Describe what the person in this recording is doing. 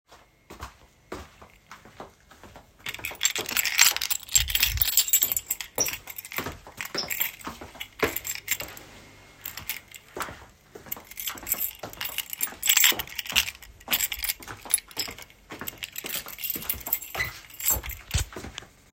I walked quickly down the hallway toward the exit. I reached into my pocket and grabbed my keys as I got closer to the door. The keychain jingled as I picked out the right key.